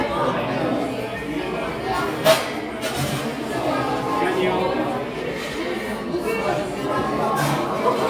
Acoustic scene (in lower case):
cafe